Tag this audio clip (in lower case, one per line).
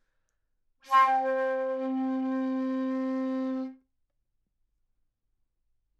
music
musical instrument
wind instrument